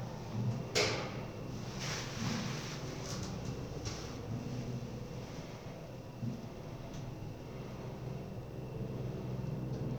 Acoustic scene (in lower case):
elevator